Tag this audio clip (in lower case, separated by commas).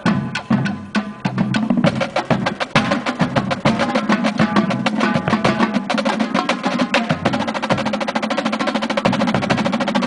music